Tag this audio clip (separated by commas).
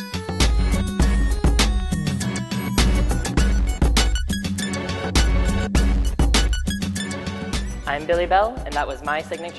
Music, Speech